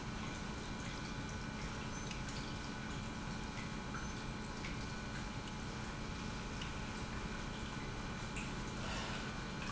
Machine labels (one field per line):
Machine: pump